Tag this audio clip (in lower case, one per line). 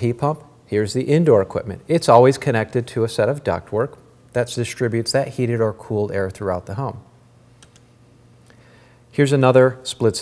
speech